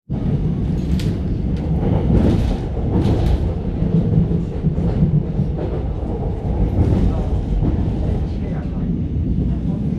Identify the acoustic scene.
subway train